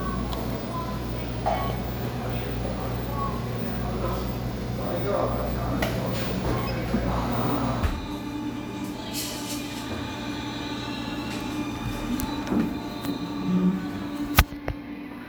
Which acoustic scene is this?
cafe